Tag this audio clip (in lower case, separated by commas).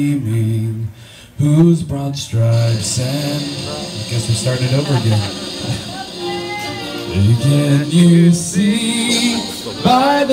music, male singing